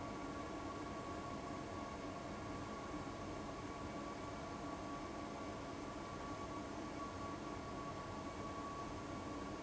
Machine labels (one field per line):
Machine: fan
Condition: abnormal